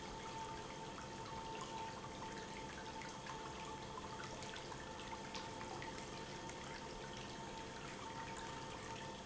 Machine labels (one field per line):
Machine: pump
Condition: abnormal